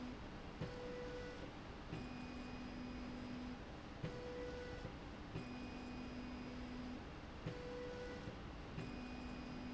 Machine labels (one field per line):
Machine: slide rail